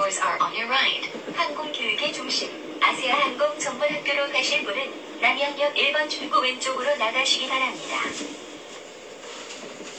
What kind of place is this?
subway train